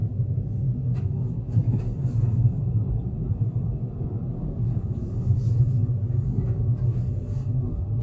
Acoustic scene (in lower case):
car